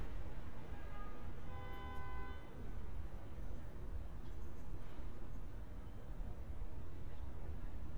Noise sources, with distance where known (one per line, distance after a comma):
background noise